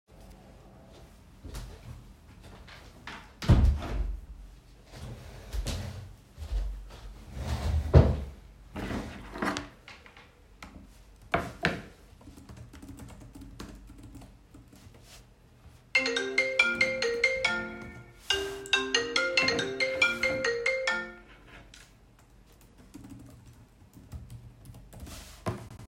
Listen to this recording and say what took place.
closed the window, then sat down, proceeded to type something on my keyboard, phone rang, so I silenced it and continued typing